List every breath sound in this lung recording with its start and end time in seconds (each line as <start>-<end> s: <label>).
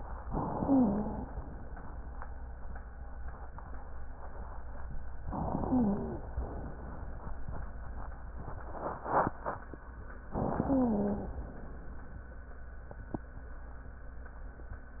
0.25-1.24 s: inhalation
0.53-1.24 s: wheeze
5.28-6.32 s: inhalation
5.50-6.21 s: wheeze
10.32-11.37 s: inhalation
10.66-11.37 s: wheeze